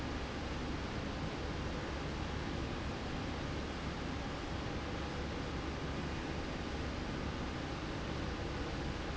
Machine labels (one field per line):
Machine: slide rail